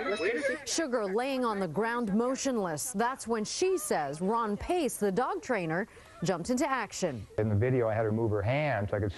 People speaking and whimpering